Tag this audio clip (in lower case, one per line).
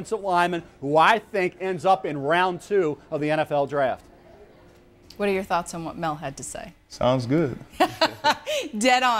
speech
woman speaking